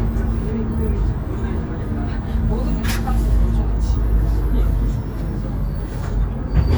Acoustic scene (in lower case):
bus